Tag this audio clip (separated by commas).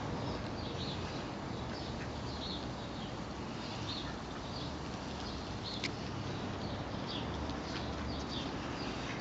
Duck, Animal